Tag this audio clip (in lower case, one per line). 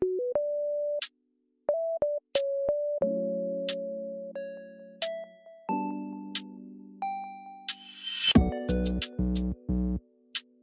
music